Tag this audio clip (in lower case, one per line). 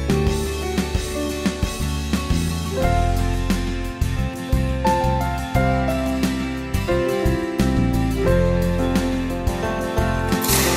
music